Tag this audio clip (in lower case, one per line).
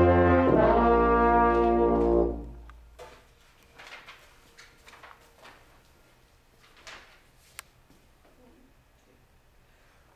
brass instrument